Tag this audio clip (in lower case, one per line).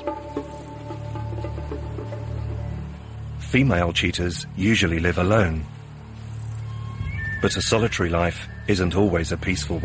music
speech